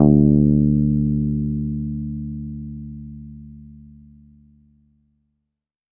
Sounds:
Musical instrument, Guitar, Bass guitar, Music, Plucked string instrument

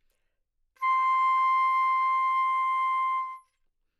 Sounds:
Music, Wind instrument, Musical instrument

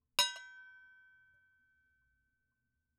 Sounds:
dishes, pots and pans, home sounds

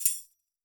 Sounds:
Music, Percussion, Tambourine, Musical instrument

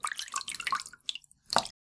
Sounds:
Drip, Liquid

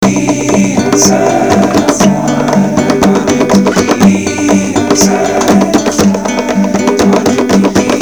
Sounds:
Acoustic guitar, Guitar, Music, Musical instrument, Plucked string instrument, Human voice

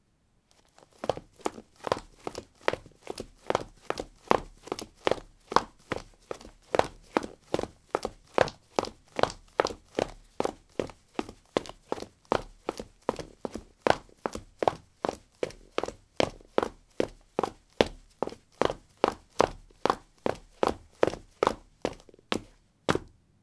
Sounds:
Run

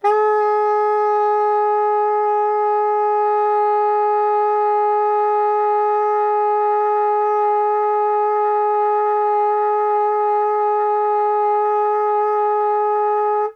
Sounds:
Music, woodwind instrument, Musical instrument

